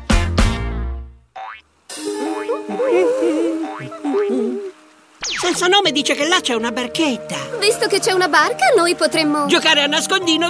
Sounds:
Stream, Speech, Music

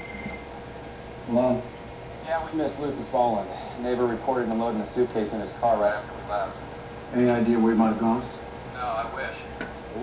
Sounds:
Speech

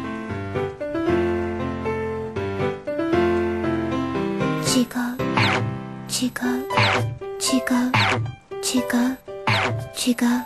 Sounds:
Speech, Music

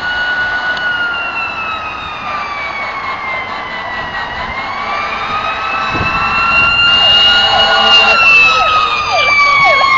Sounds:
Police car (siren)

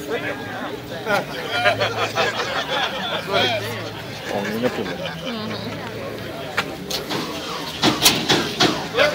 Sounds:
Vehicle, Speech

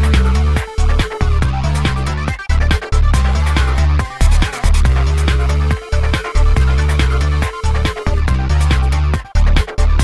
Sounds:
Music

